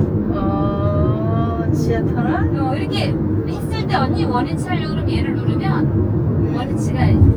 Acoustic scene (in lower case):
car